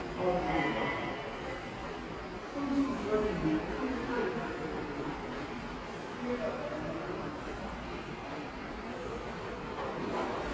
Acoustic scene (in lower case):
subway station